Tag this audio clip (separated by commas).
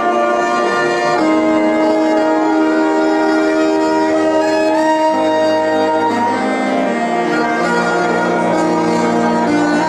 Music, inside a large room or hall